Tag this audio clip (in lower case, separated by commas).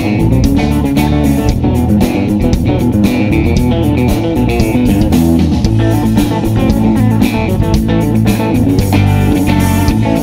musical instrument, music, plucked string instrument, acoustic guitar, strum, guitar